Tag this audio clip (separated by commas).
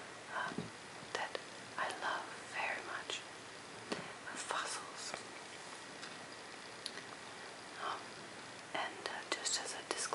people whispering, Speech, Whispering